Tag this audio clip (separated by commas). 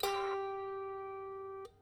Music, Musical instrument, Harp